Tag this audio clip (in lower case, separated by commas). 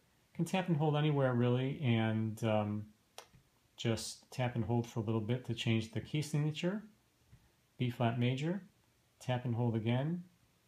speech